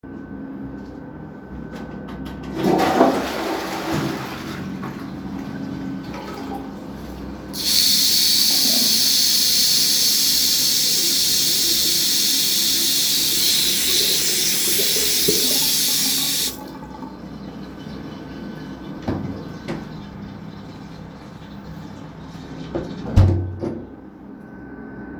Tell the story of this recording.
I turned on the tap, flushed the toilet, and then turned the water off again.